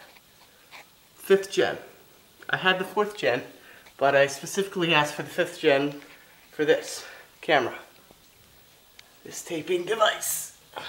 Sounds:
speech

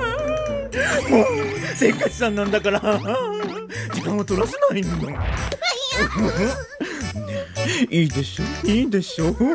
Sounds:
speech, music

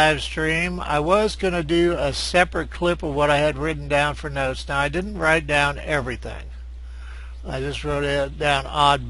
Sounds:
speech

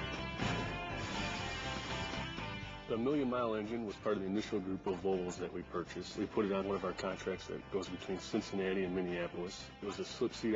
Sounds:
music, speech

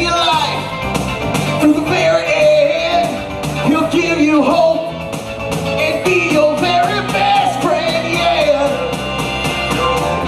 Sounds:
blues

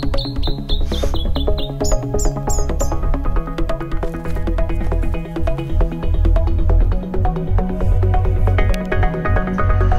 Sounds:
outside, rural or natural, music, animal

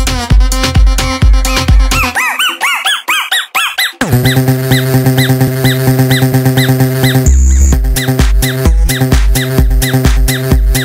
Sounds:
music

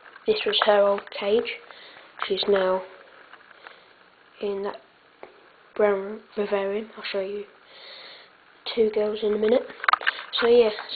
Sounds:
speech

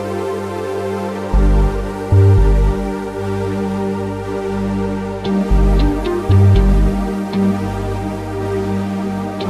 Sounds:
music

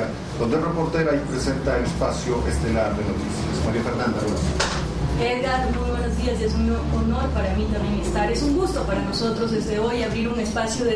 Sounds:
speech, music

